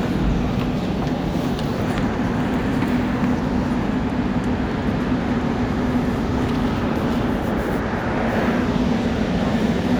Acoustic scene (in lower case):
subway train